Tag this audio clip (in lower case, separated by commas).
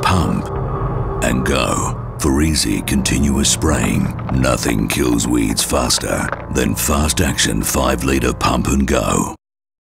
speech, music